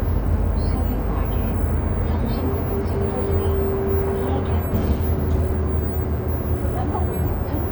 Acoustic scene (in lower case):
bus